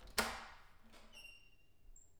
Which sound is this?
door opening